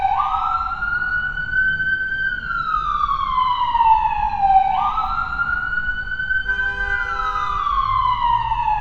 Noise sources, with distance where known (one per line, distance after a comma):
siren, near